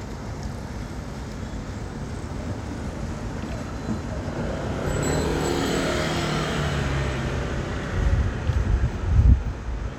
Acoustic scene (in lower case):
street